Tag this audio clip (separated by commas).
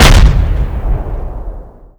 Explosion